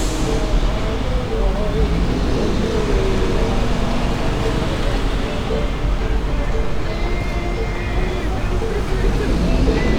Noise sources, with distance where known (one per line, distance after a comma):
engine of unclear size, near
music from an unclear source, near
unidentified human voice